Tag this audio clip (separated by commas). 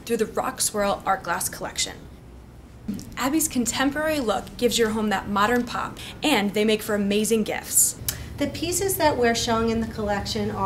Speech